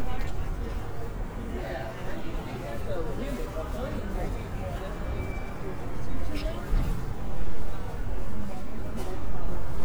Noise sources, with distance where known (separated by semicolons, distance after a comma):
person or small group talking, near